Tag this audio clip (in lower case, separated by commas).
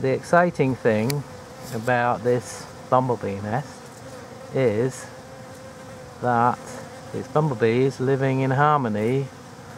fly, insect, bee or wasp